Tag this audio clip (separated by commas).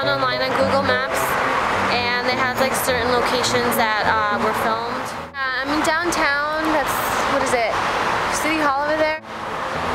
Music, Speech